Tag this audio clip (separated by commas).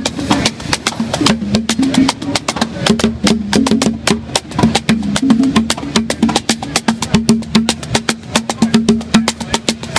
Percussion